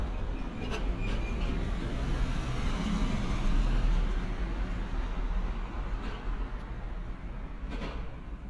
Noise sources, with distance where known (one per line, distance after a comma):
engine of unclear size, near